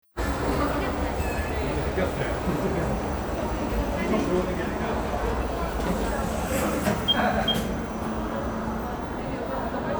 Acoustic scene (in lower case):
cafe